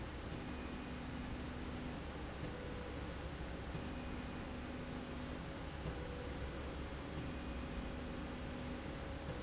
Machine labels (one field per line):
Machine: slide rail